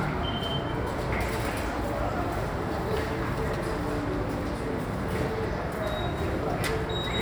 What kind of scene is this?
subway station